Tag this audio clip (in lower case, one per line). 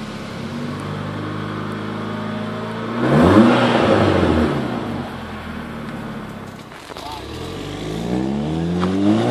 crackle
scratch
rattle